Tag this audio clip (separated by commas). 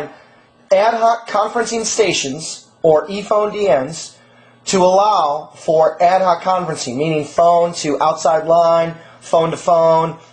Speech